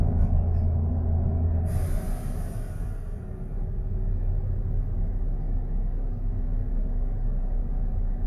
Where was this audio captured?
on a bus